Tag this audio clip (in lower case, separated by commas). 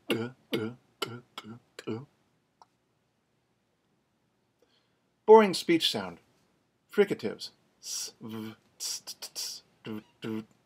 speech